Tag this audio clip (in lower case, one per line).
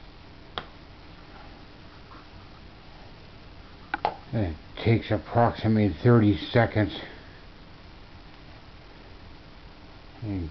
speech